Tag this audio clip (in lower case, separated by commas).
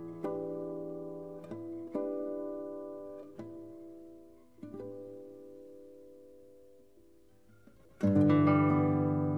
music, plucked string instrument, guitar, musical instrument